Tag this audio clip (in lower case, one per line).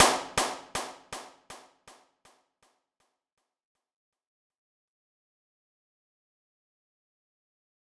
clapping
hands